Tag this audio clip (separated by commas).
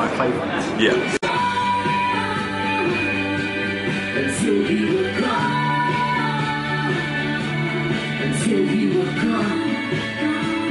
Speech, Music